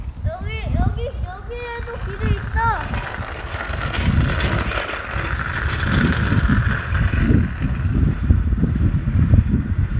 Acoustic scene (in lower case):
residential area